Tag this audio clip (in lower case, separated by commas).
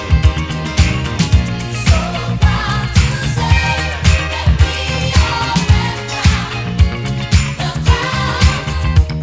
music, funk, electronic music, disco